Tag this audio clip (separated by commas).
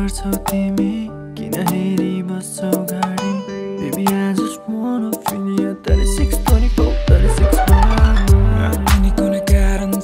inside a large room or hall, Singing, Music